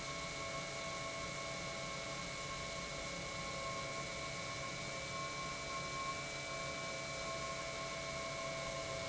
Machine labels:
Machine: pump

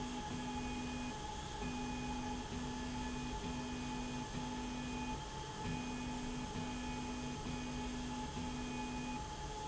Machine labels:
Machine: slide rail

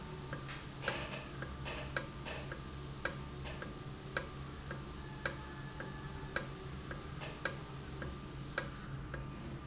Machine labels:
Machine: valve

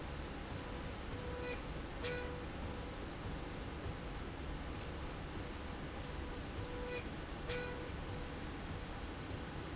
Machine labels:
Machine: slide rail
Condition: normal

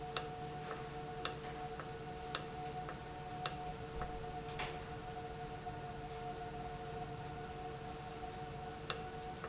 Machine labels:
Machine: valve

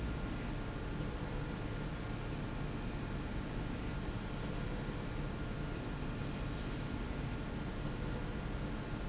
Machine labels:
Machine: slide rail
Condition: normal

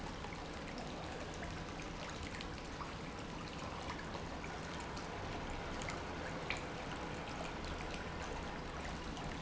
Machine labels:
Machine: pump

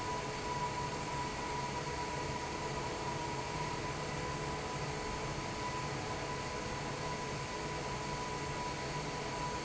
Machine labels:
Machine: fan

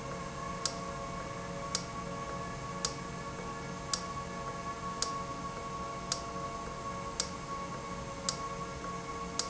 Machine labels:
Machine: valve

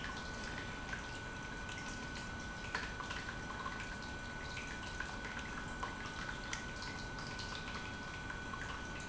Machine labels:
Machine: pump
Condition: normal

